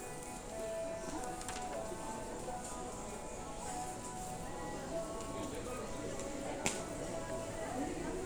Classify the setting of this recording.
crowded indoor space